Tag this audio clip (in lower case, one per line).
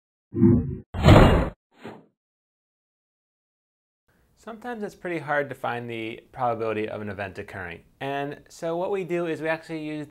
speech